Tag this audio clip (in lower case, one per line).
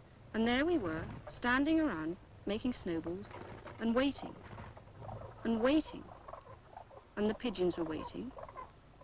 speech